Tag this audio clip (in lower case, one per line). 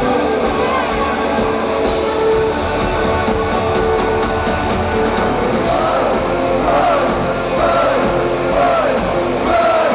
disco
music